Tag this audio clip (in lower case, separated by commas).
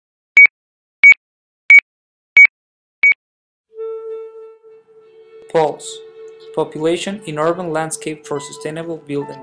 music, speech, pulse